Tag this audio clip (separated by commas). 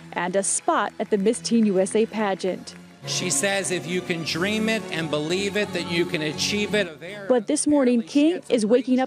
Speech, Music